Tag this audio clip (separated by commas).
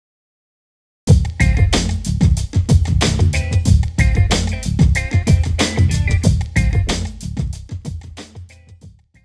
Drum machine